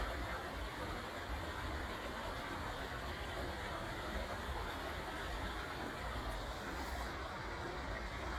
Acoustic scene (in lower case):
park